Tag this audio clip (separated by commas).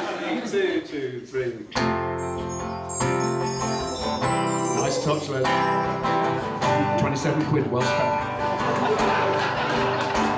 Speech, inside a large room or hall, Music